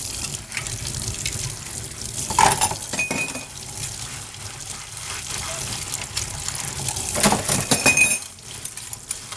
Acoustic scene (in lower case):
kitchen